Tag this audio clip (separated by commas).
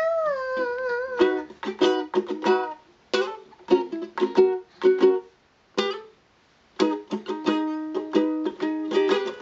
playing ukulele